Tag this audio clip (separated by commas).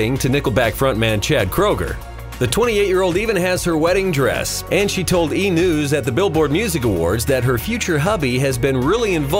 Music, Speech